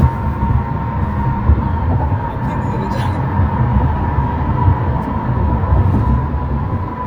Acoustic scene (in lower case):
car